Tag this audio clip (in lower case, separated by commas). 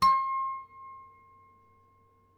musical instrument, music, harp